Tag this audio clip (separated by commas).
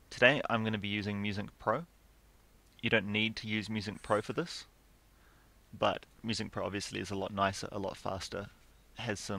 Speech